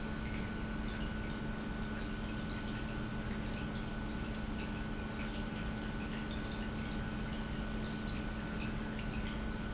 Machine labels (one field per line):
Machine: pump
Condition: normal